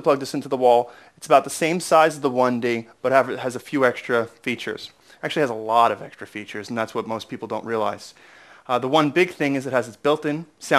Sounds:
speech

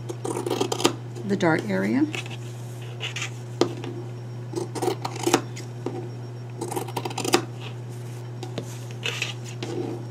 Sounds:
speech

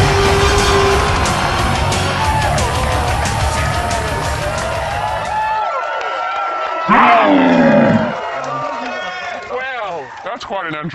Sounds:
music, speech

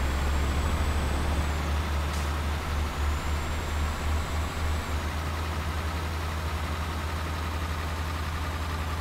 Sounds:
vehicle, truck

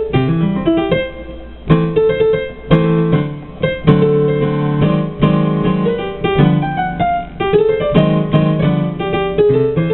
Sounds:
musical instrument, keyboard (musical), piano, music

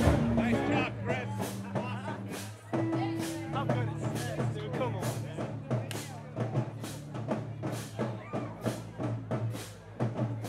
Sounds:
speech, music

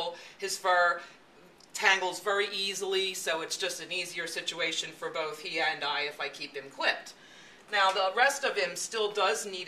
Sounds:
speech

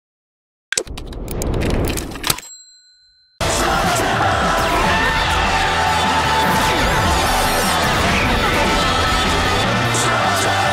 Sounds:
music

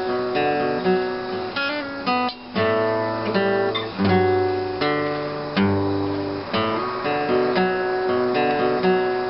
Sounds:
musical instrument, plucked string instrument, guitar, strum, acoustic guitar, music

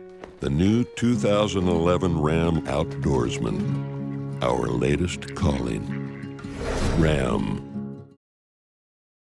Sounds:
speech, music

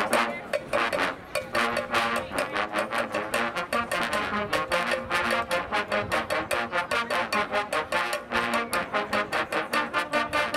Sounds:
playing trombone

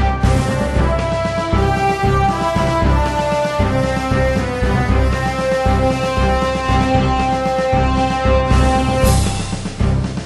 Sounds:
music

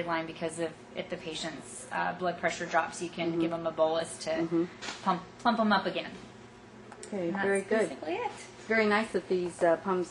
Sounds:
speech

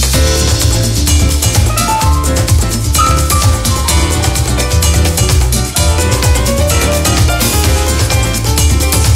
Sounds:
music

